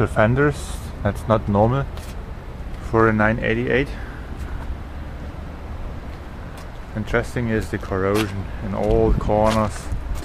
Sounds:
Speech

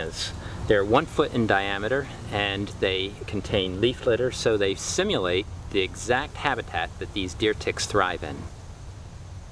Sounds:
Speech

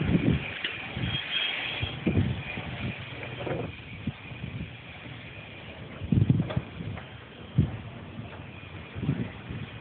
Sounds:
Wind noise (microphone), Wind

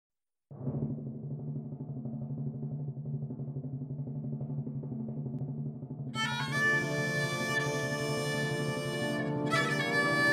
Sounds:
Violin, Bowed string instrument, Music

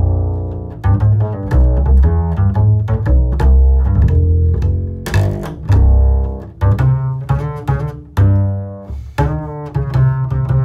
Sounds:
playing double bass

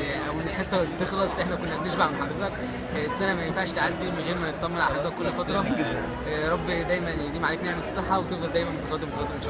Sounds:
Music, Speech

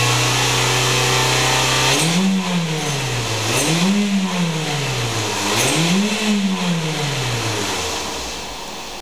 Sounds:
Vehicle, revving, Medium engine (mid frequency), Car, Engine

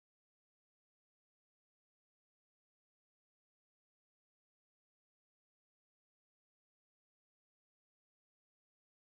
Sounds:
cupboard opening or closing

